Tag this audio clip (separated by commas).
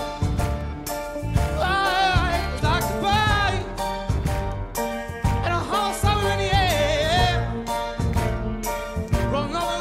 Soul music, Music